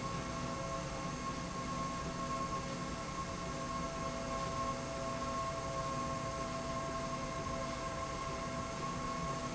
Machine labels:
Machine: slide rail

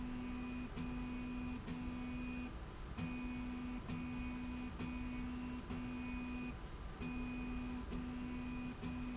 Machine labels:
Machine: slide rail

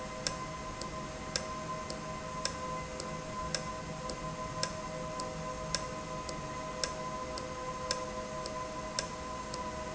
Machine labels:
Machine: valve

